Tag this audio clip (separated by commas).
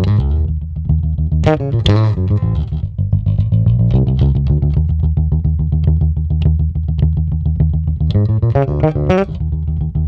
Music